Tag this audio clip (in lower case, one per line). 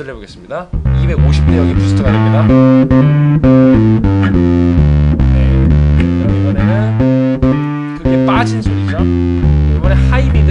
speech
effects unit
music
bass guitar
musical instrument
tapping (guitar technique)